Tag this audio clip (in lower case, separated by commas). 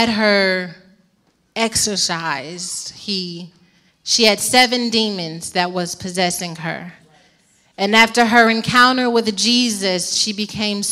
speech